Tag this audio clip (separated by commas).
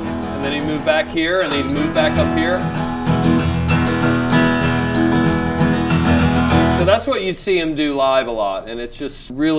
Strum, Speech, Music, Acoustic guitar